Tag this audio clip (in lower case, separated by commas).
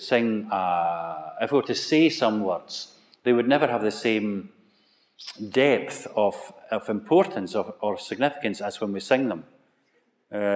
speech